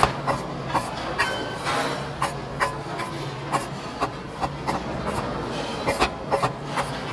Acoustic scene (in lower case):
restaurant